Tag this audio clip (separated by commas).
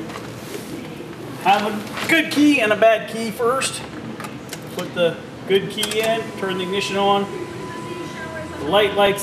Speech